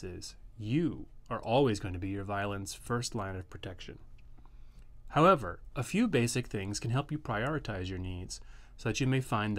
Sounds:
speech

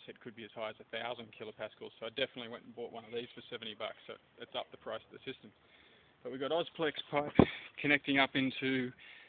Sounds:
speech

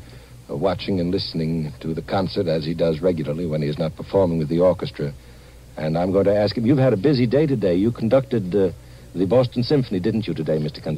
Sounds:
radio
speech

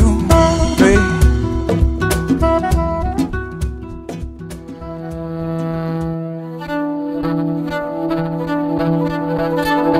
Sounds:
music

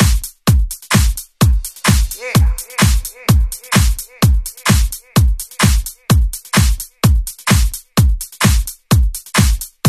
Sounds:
music

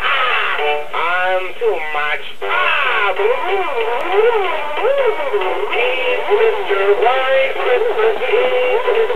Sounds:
male singing
synthetic singing
music

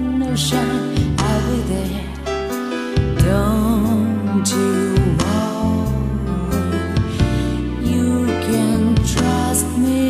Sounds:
music

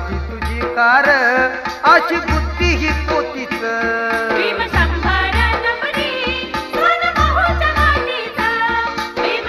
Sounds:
music
carnatic music

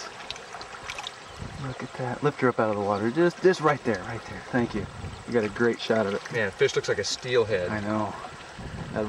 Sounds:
speech
stream

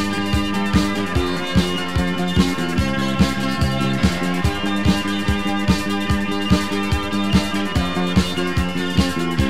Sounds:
music

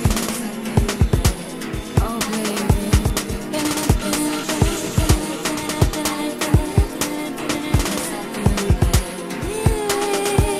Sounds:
music

